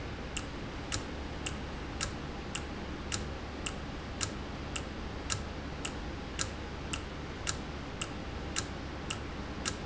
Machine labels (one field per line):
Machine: valve